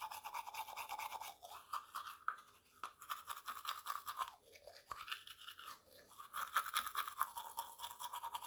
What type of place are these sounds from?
restroom